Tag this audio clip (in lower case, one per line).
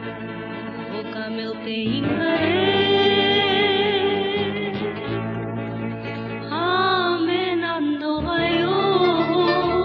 gospel music
music